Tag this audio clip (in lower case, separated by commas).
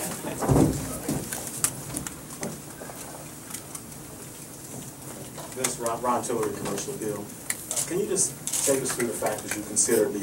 speech, inside a large room or hall